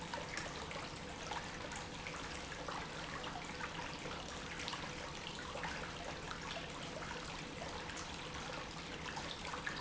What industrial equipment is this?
pump